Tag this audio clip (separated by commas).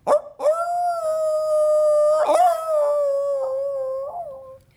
Dog, pets, Animal